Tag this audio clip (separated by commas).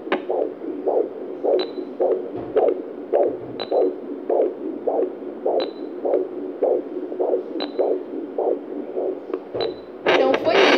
heart sounds